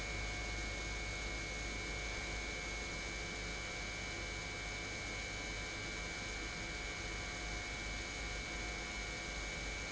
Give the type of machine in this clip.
pump